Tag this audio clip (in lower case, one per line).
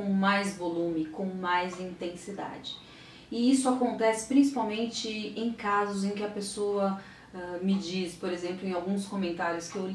speech